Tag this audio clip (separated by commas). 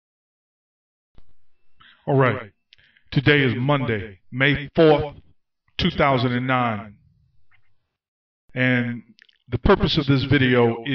Speech